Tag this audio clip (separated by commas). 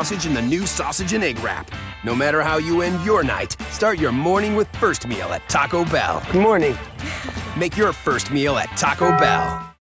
Music, Speech